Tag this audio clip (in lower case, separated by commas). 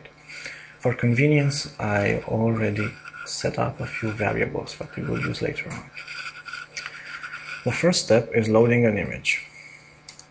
speech